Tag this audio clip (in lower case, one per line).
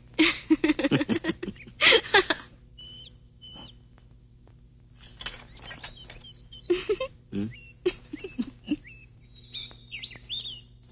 outside, rural or natural